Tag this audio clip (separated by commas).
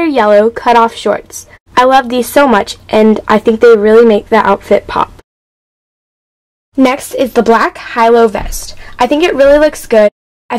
Speech